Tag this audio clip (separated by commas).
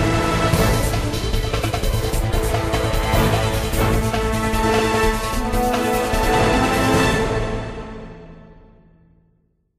Music, Exciting music